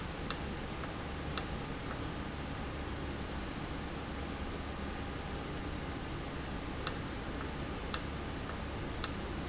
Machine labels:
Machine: valve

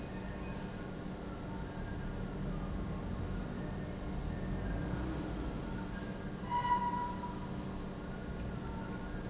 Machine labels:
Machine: pump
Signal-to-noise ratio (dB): -6 dB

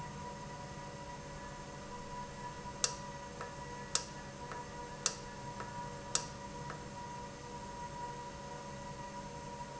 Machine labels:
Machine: valve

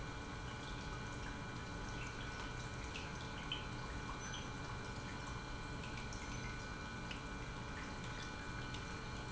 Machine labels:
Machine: pump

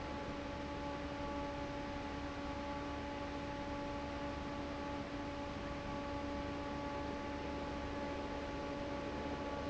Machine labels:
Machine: fan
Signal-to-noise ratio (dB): 0 dB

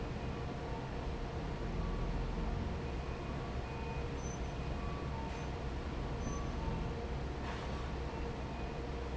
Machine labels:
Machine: fan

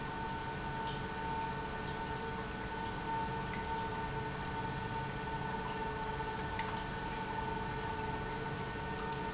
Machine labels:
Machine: pump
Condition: normal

